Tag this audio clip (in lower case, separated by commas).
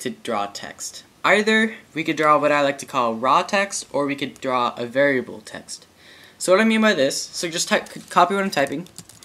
computer keyboard, typing, speech